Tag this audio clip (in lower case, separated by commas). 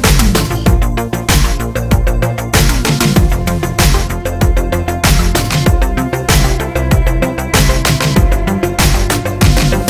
music